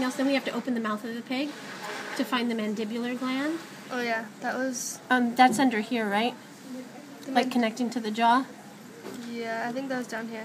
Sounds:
Speech

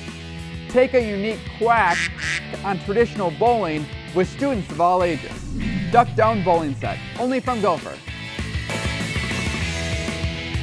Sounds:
Music, Quack, Speech

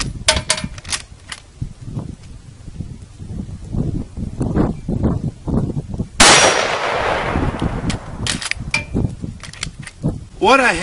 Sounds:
gunfire

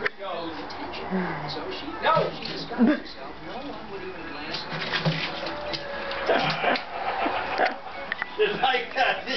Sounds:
Water

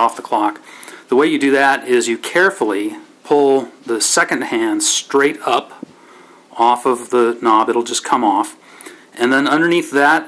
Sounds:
Speech

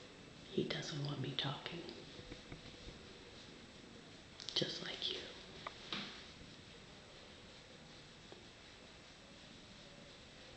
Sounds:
Speech

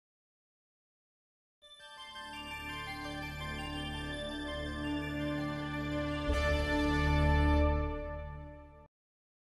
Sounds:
Music

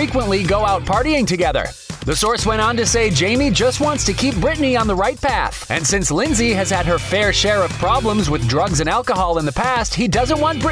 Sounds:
Music, Speech

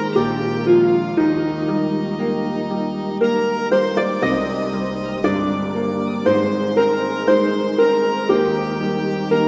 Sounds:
Music, Harpsichord

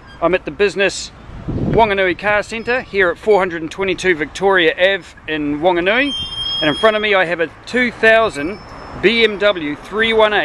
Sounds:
Speech

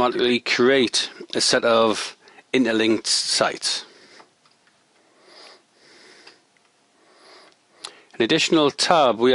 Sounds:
Speech

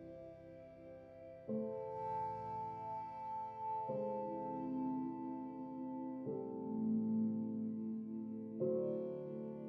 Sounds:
Music

